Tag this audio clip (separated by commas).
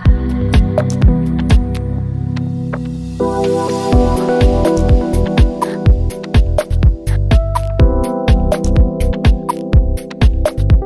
Music